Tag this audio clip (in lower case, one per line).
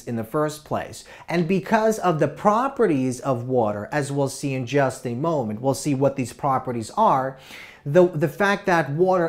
speech